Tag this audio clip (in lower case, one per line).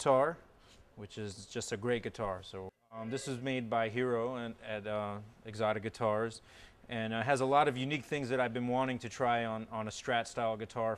speech